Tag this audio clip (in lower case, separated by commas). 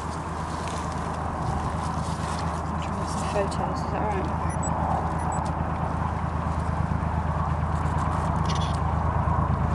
speech